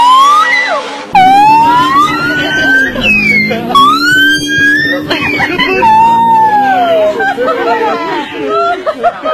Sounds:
speech

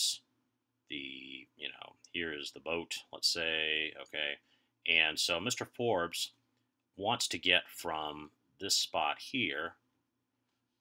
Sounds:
speech

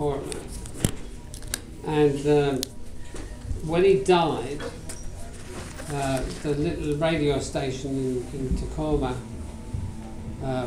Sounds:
speech

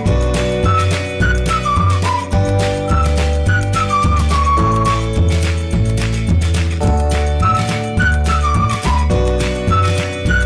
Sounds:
music

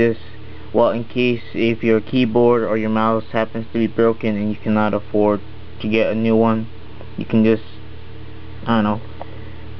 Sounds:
speech

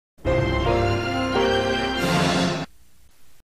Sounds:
television
music

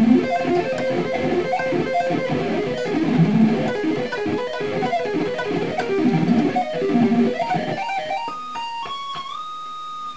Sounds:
electric guitar
plucked string instrument
musical instrument
guitar
music

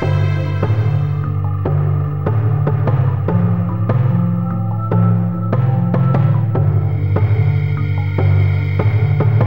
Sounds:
outside, rural or natural
music

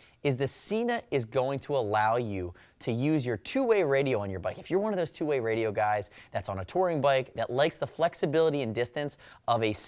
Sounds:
speech

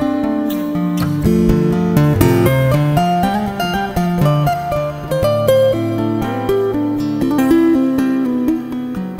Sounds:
tapping guitar

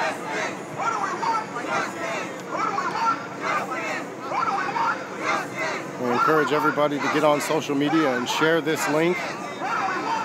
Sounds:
speech
radio

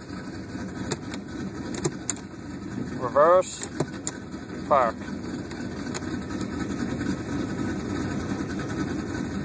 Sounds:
speech

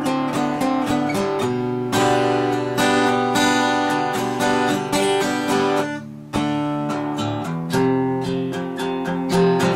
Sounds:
playing acoustic guitar
acoustic guitar
guitar
musical instrument
strum
music
plucked string instrument

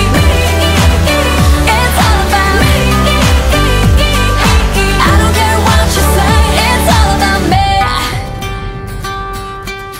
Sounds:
singing
music

